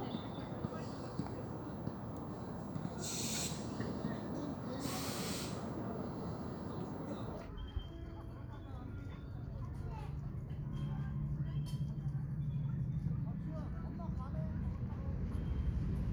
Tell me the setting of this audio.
park